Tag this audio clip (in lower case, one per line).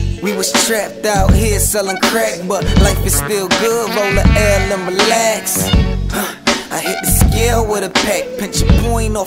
music